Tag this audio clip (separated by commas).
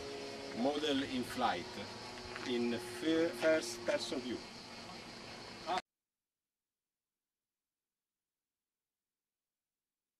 Speech